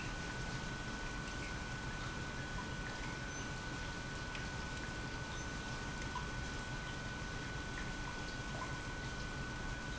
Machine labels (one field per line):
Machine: pump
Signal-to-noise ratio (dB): 0 dB